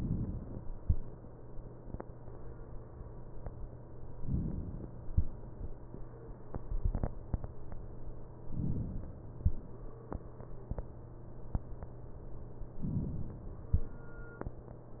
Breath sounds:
Inhalation: 4.21-5.06 s, 8.61-9.45 s, 12.84-13.68 s

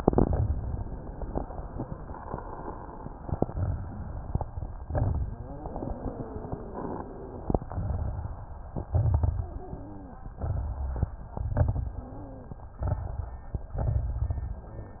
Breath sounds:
Inhalation: 4.86-5.54 s, 8.90-9.58 s, 11.35-12.20 s, 13.81-14.67 s
Exhalation: 7.70-8.56 s, 10.36-11.21 s, 12.79-13.55 s
Crackles: 4.86-5.54 s, 7.70-8.56 s, 8.90-9.58 s, 10.36-11.21 s, 11.35-12.20 s, 12.79-13.55 s, 13.81-14.67 s

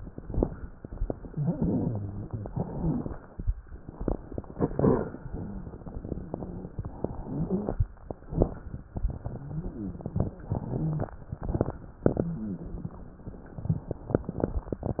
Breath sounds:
Inhalation: 0.87-2.28 s, 3.78-6.80 s, 8.18-8.92 s, 11.41-12.01 s
Exhalation: 0.00-0.90 s, 2.30-3.77 s, 6.82-8.19 s, 8.93-11.39 s, 12.02-13.63 s
Wheeze: 1.28-2.28 s, 5.27-5.74 s, 9.21-9.97 s, 10.47-11.06 s, 12.21-12.92 s
Stridor: 7.20-7.76 s
Crackles: 0.00-0.90 s, 2.30-3.77 s, 8.18-8.92 s, 11.41-12.01 s, 13.61-14.63 s

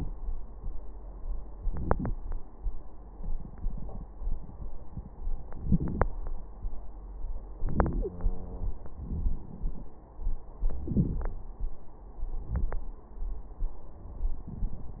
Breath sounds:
Inhalation: 1.56-2.11 s, 5.55-6.05 s, 7.57-8.08 s, 10.83-11.42 s
Exhalation: 8.08-8.93 s
Wheeze: 8.08-8.93 s

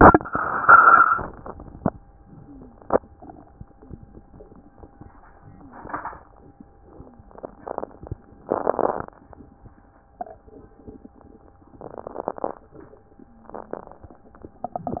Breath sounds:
Inhalation: 3.00-3.70 s, 5.50-6.20 s
Exhalation: 2.19-3.03 s, 3.75-4.45 s, 6.82-7.56 s, 13.20-13.94 s
Wheeze: 2.37-2.85 s, 3.79-4.47 s, 5.50-5.91 s, 6.94-7.42 s, 13.20-13.94 s

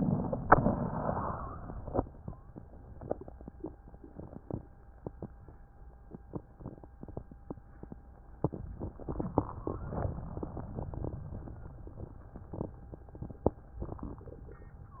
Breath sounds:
Inhalation: 0.00-0.49 s, 8.37-10.06 s
Exhalation: 0.56-1.95 s, 10.04-11.19 s
Wheeze: 0.56-1.95 s, 9.33-9.88 s
Crackles: 0.00-0.49 s, 10.04-11.19 s

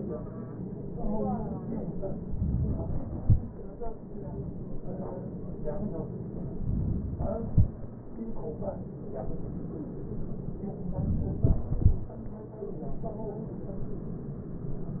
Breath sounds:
Inhalation: 2.34-3.20 s, 6.55-7.52 s, 10.88-11.49 s

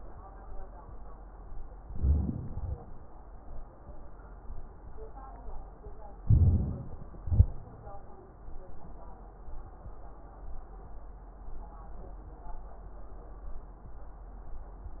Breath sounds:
Inhalation: 1.79-2.80 s, 6.24-7.25 s
Exhalation: 7.25-7.73 s

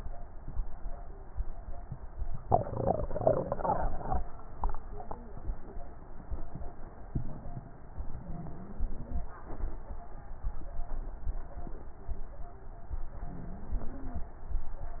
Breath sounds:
Inhalation: 7.98-9.27 s, 13.26-14.31 s
Wheeze: 8.23-9.27 s, 13.26-14.31 s

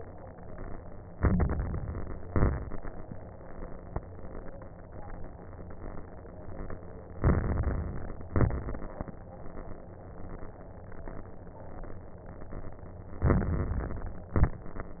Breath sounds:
Inhalation: 1.12-2.22 s, 7.16-8.27 s, 13.21-14.31 s
Exhalation: 2.22-2.77 s, 8.30-9.16 s, 14.38-15.00 s
Crackles: 1.12-2.22 s, 2.26-2.81 s, 7.16-8.27 s, 8.30-9.16 s, 13.21-14.31 s, 14.38-15.00 s

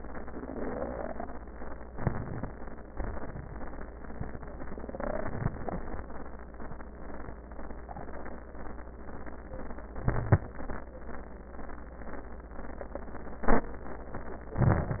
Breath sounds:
Inhalation: 1.90-2.50 s, 9.97-10.59 s, 14.56-15.00 s
Exhalation: 2.96-3.57 s
Wheeze: 9.97-10.59 s

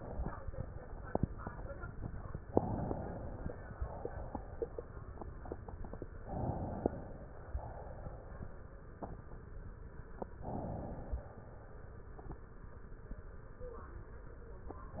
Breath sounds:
Inhalation: 2.47-3.54 s, 6.21-7.52 s, 10.37-11.40 s, 14.82-15.00 s
Exhalation: 3.54-4.84 s, 7.52-8.72 s

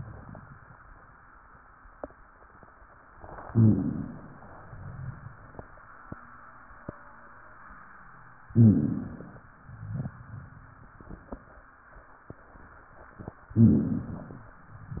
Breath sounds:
Inhalation: 3.45-4.38 s, 8.50-9.44 s, 13.51-14.45 s
Exhalation: 4.55-5.81 s, 9.61-10.87 s, 14.65-15.00 s
Rhonchi: 3.45-4.38 s, 8.50-9.44 s, 13.51-14.45 s
Crackles: 4.55-5.47 s, 9.63-10.55 s

